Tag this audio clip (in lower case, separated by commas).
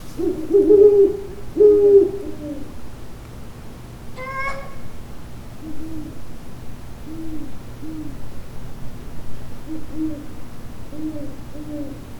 wild animals, animal, bird